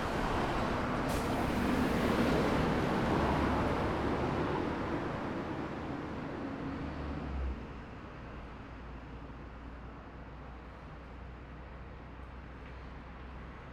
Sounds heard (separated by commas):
bus compressor, bus engine accelerating, bus, car, car wheels rolling